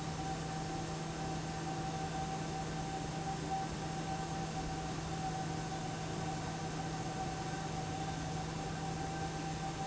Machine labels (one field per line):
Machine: fan